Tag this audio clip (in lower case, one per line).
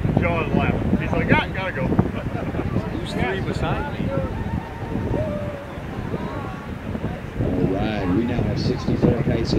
speech
outside, rural or natural